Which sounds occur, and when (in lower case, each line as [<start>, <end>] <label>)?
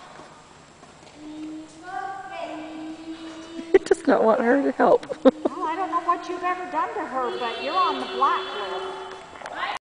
[0.00, 9.72] mechanisms
[1.13, 4.04] kid speaking
[1.80, 2.79] female speech
[1.80, 8.85] conversation
[3.53, 4.02] laughter
[4.03, 4.97] female speech
[4.96, 5.52] laughter
[4.97, 9.26] kid speaking
[5.39, 8.79] female speech
[9.09, 9.53] generic impact sounds
[9.44, 9.73] kid speaking